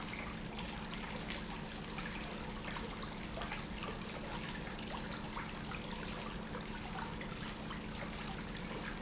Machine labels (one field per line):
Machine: pump